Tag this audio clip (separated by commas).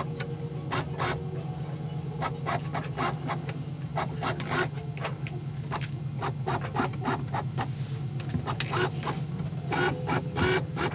Boat